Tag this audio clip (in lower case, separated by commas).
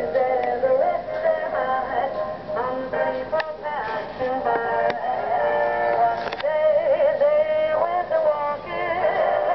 radio, music